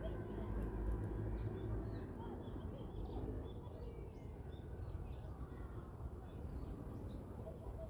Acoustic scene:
residential area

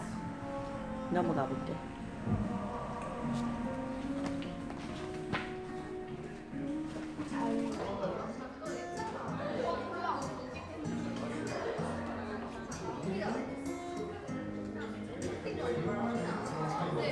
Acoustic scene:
crowded indoor space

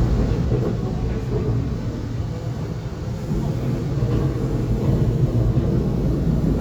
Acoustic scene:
subway train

